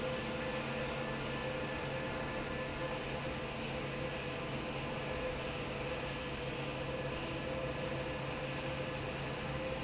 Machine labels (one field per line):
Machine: fan